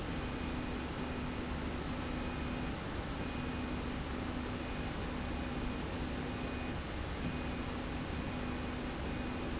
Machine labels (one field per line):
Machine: slide rail